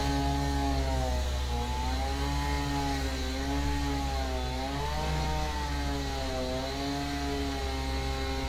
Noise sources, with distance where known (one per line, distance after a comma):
chainsaw, near